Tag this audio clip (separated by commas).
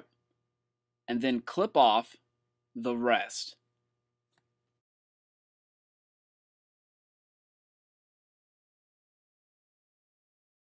Speech